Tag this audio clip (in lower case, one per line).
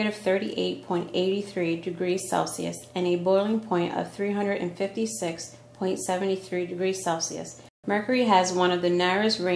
speech